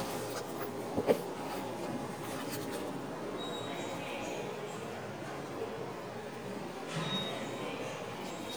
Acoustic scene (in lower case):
subway station